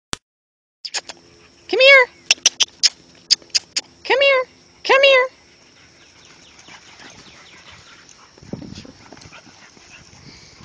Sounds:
Animal, Domestic animals, Whimper (dog), Dog, Speech

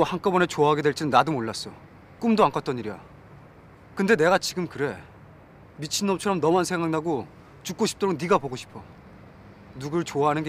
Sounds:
Speech

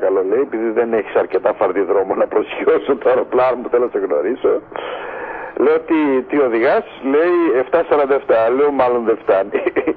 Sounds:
Radio, Speech

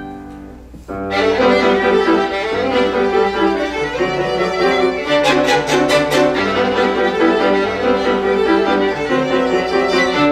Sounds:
Piano, Music, Bowed string instrument, Violin, Musical instrument

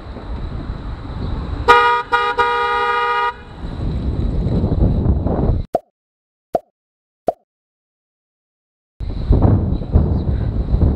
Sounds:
honking

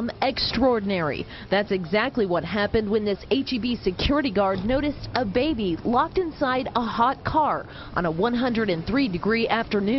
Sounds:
Speech

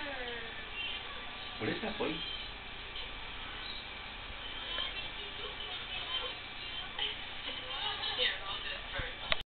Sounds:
Animal, Speech

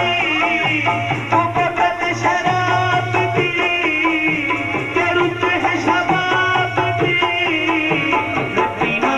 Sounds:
Middle Eastern music, Music

